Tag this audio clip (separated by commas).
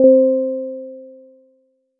Music, Piano, Musical instrument, Keyboard (musical)